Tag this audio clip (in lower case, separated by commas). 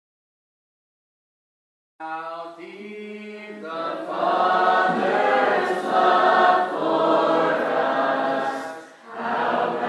chant